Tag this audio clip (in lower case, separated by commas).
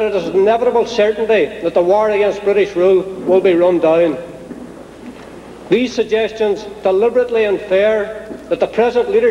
monologue, speech, man speaking